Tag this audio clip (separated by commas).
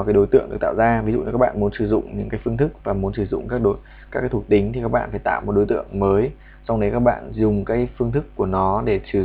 Speech